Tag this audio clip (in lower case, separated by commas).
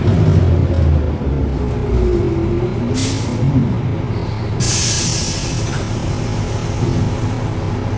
bus, engine, vehicle, motor vehicle (road)